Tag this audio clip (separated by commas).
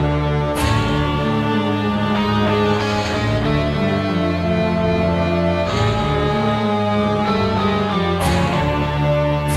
Music